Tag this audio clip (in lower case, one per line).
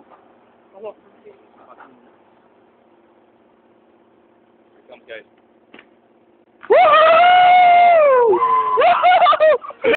speech